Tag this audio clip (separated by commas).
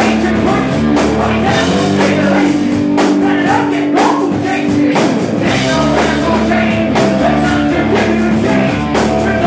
Music